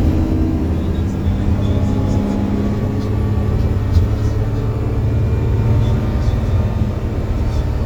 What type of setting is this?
bus